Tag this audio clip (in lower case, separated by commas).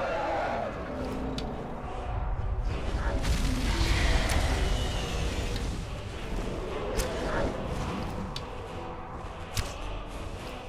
music, bellow